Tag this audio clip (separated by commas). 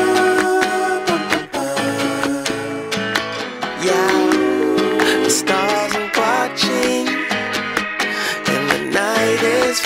Funk, Music